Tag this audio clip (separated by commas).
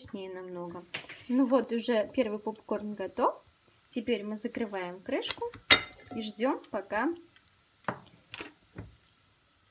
popping popcorn